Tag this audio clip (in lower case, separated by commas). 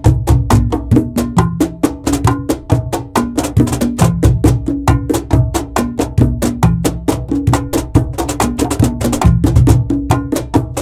music, percussion